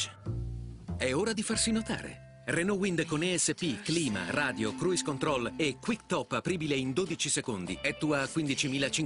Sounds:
Speech, Music

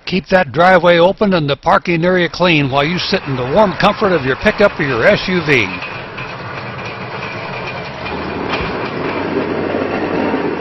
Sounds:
Speech, Vehicle

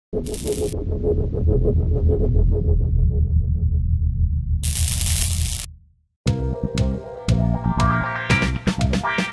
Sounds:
Music

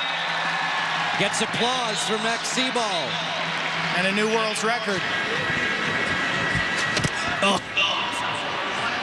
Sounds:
playing lacrosse

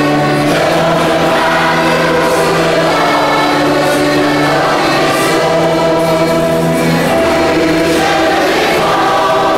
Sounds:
Music

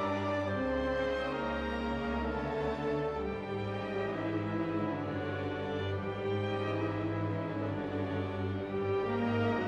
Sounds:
Music, Musical instrument, fiddle

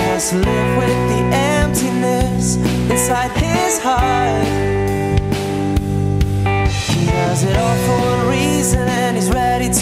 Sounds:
Rhythm and blues, Music

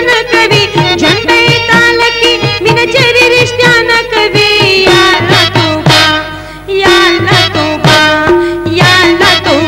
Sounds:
Music

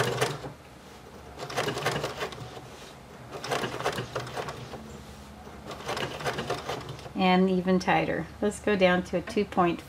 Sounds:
using sewing machines

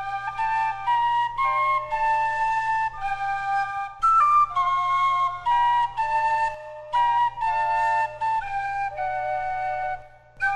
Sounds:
Flute, Music

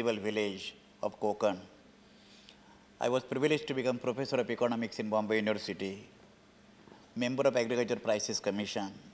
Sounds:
man speaking, Speech

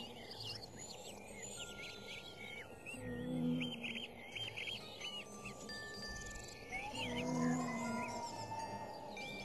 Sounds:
Music, Wind

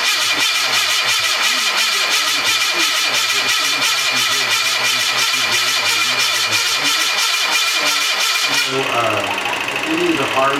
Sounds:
Speech, Car

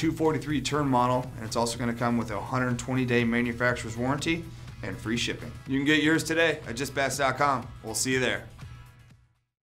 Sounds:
Speech

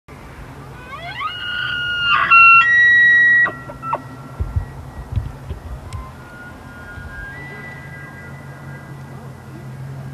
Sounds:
elk bugling

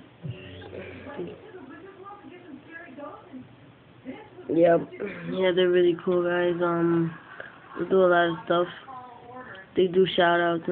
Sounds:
Speech

